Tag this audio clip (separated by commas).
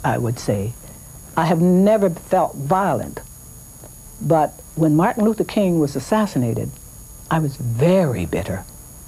inside a small room, Speech